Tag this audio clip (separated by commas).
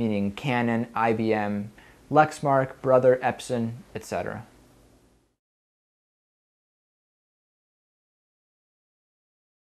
Speech